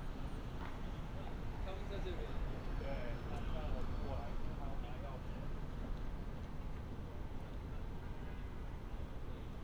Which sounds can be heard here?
person or small group talking